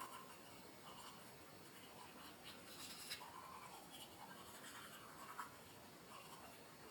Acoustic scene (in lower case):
restroom